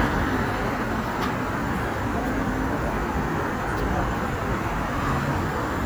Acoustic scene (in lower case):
street